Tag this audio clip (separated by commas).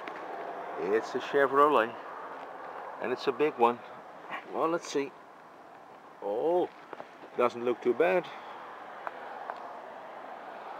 Speech